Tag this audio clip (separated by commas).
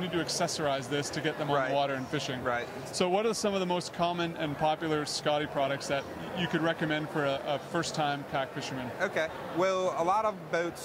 Speech